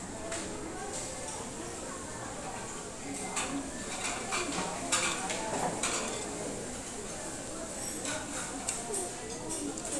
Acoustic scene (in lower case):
restaurant